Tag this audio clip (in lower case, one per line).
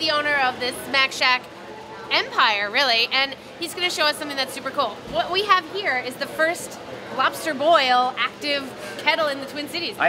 speech